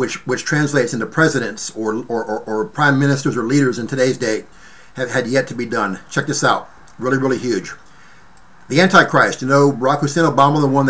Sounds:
speech

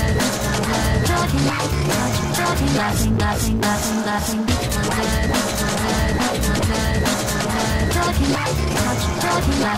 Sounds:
dubstep, music, electronic music

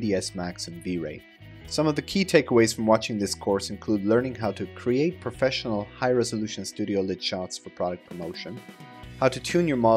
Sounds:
music, speech

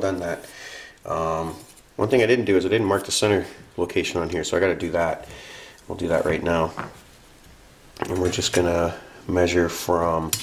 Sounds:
speech, inside a small room

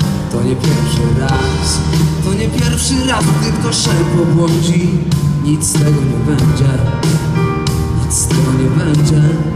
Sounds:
blues, ska, music, independent music, middle eastern music, rhythm and blues

